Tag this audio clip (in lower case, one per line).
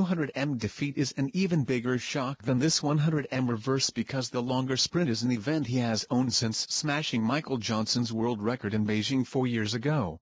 speech